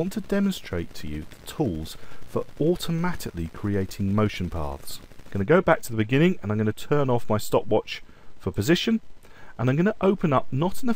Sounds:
Speech

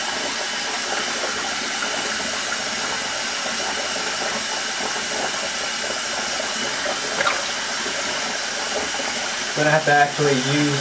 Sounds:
Speech

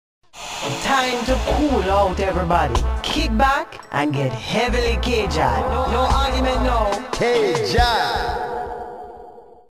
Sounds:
Speech, Music

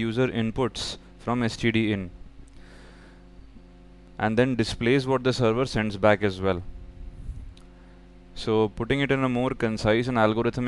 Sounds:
Speech

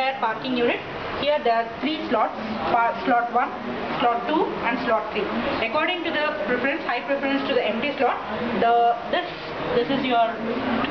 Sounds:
Speech, Car passing by

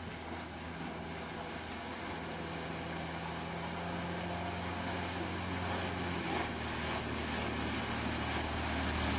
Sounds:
Vehicle, Boat, speedboat

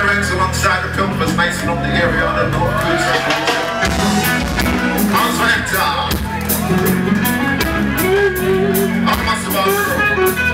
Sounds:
Music, Speech

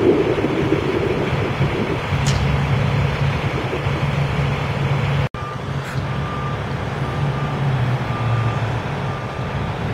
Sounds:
outside, urban or man-made, Vehicle, Truck

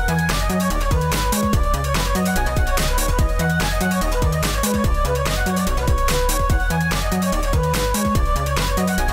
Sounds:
Music

